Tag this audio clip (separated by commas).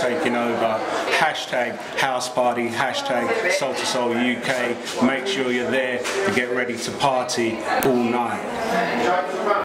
Speech